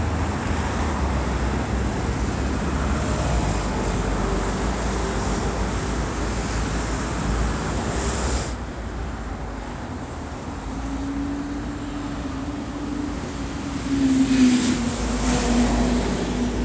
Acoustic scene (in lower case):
street